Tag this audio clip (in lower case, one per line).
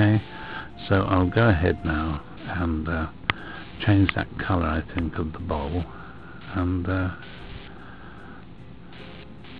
speech
music